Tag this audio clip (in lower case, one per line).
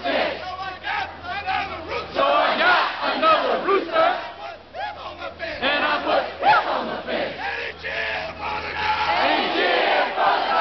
speech